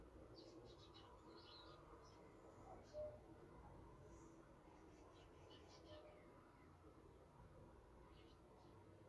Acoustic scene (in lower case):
park